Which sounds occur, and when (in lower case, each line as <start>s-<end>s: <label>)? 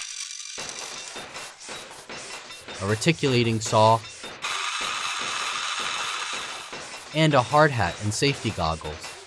0.0s-1.1s: drill
0.0s-9.2s: mechanisms
4.4s-7.0s: power tool
7.1s-9.0s: man speaking